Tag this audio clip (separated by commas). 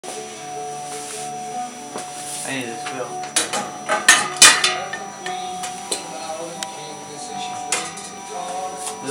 Speech, inside a public space, Music